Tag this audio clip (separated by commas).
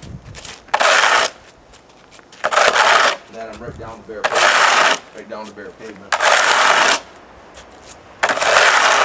Speech